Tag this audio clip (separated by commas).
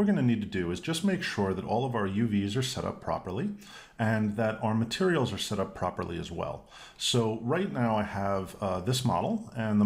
Speech